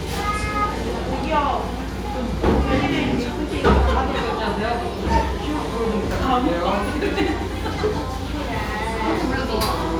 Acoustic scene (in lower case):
cafe